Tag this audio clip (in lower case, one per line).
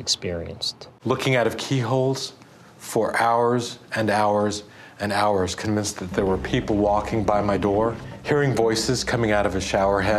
music
speech